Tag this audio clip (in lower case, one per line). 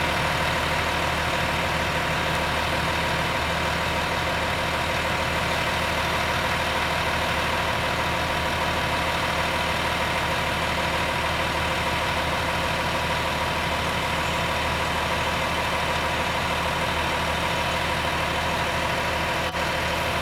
motor vehicle (road)
truck
vehicle